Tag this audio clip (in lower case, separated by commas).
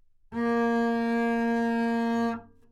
music, musical instrument, bowed string instrument